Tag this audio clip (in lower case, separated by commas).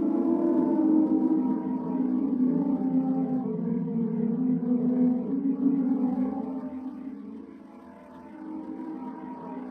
sound effect, music